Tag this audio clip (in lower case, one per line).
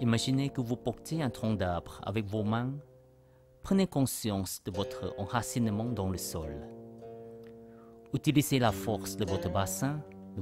speech
music